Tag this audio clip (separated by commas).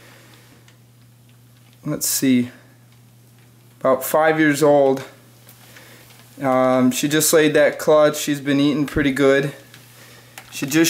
inside a small room, Speech